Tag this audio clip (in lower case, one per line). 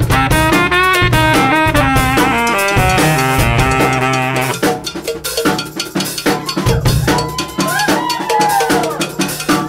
music